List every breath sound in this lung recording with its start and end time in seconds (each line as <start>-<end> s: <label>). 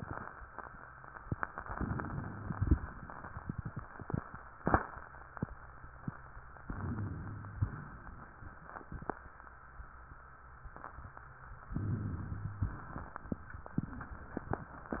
1.73-2.52 s: inhalation
2.64-3.32 s: exhalation
6.62-7.53 s: inhalation
7.53-8.37 s: exhalation
11.75-12.64 s: inhalation
12.64-13.32 s: exhalation